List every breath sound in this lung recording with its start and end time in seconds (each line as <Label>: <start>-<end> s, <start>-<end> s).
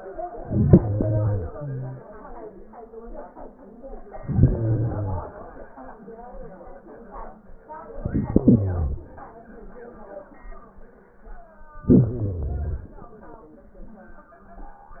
Inhalation: 0.36-1.55 s, 4.21-5.32 s, 7.92-9.03 s, 11.84-12.95 s
Exhalation: 1.47-2.57 s